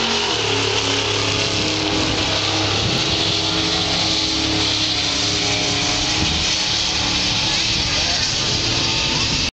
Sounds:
car, vehicle, speech

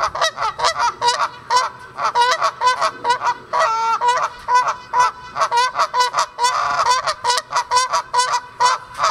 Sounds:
goose honking

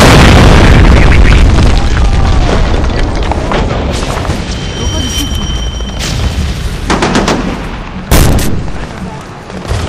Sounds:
speech

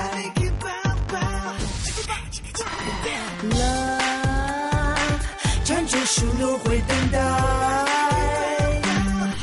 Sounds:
music of asia, music, pop music

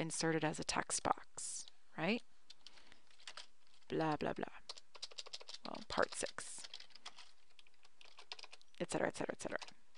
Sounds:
computer keyboard

